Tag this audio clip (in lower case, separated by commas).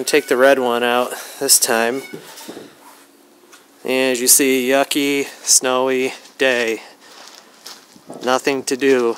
speech